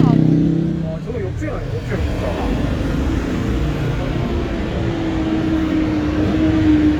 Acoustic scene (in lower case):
street